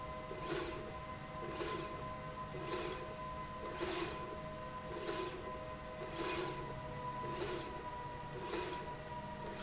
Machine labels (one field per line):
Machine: slide rail